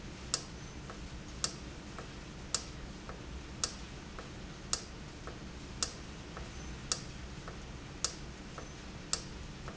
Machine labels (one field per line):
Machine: valve